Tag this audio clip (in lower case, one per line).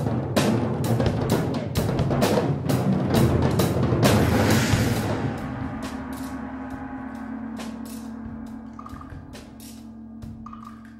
wood block
music
percussion